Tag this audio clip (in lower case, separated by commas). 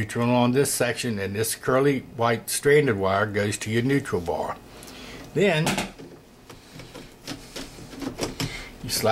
inside a small room, speech